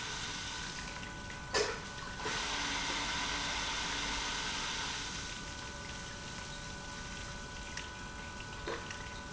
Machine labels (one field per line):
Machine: pump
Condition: abnormal